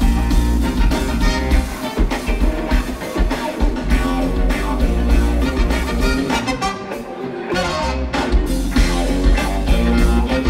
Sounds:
Music, Jazz

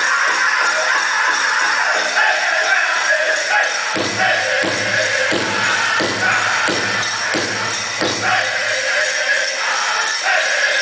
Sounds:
Music

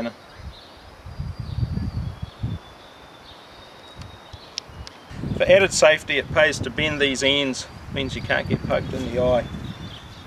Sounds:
Speech

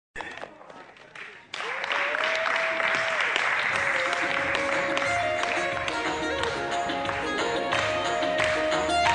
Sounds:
Folk music

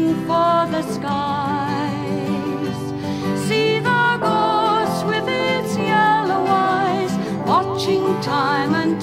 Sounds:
Music

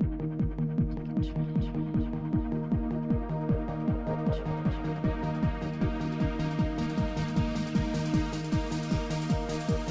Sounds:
Exciting music, Music

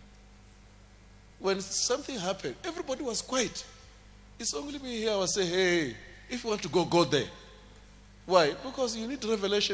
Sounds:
Speech

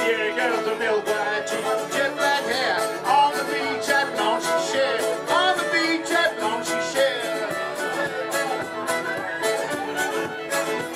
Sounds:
Jazz, Dance music, Music

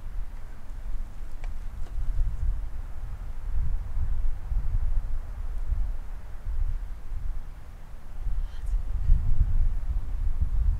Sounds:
Speech

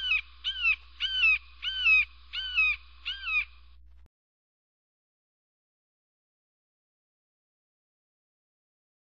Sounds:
Bird

